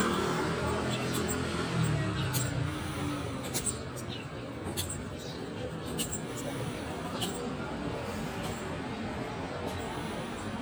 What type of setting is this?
residential area